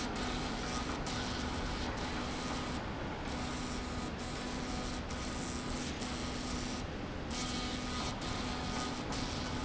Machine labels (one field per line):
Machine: slide rail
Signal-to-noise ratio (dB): -6 dB